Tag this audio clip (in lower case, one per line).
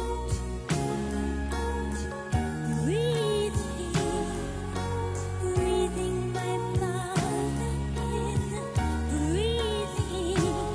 music of asia